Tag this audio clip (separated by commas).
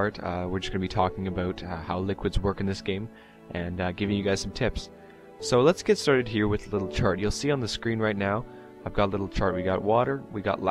Speech, Music